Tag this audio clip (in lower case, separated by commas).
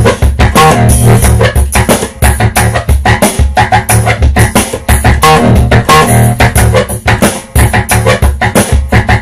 music